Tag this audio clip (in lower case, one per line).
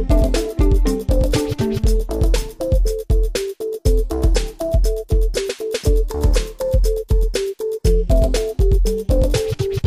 music